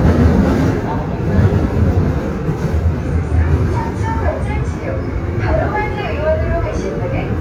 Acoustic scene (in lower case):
subway train